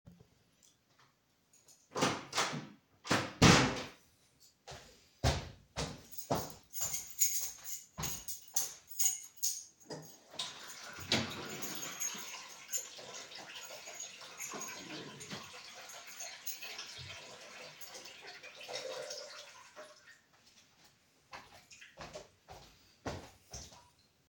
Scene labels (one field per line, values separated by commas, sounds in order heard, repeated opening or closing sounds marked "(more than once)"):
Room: kitchen, living room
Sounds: door, footsteps, keys, running water